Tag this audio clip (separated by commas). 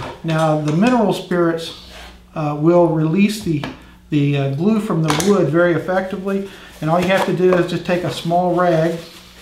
Speech, Wood